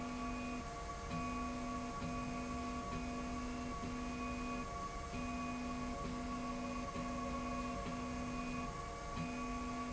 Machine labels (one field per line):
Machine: slide rail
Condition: normal